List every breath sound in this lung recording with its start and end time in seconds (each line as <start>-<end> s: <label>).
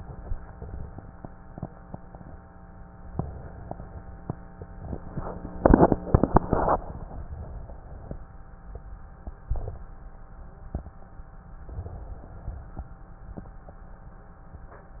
3.10-4.29 s: inhalation
11.64-12.83 s: inhalation